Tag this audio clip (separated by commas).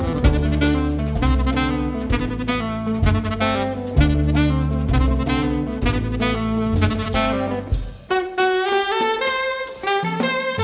Guitar, Drum, Double bass, Musical instrument, Percussion, Music, Drum kit, Saxophone